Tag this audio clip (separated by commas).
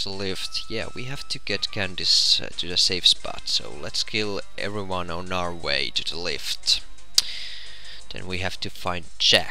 Music, Speech